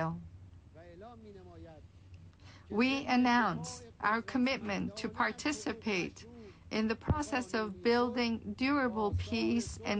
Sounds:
female speech, monologue, man speaking, speech

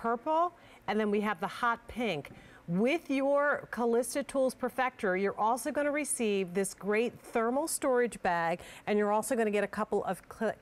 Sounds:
speech

